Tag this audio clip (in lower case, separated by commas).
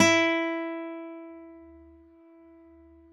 acoustic guitar, musical instrument, guitar, music, plucked string instrument